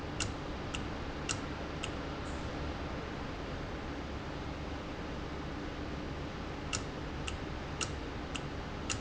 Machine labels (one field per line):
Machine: valve